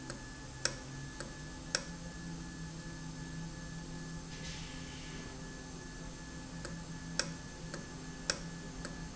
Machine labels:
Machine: valve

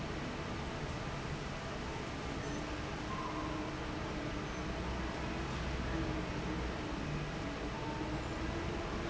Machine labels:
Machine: fan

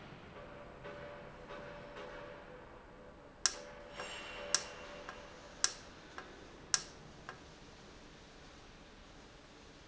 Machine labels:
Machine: valve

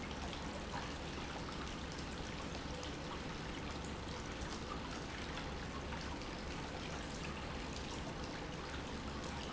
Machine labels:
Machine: pump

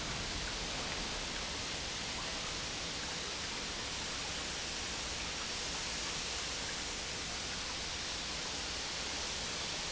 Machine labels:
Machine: pump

